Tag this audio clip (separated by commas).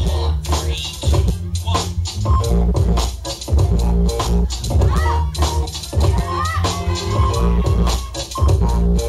Speech, Music, Scratching (performance technique)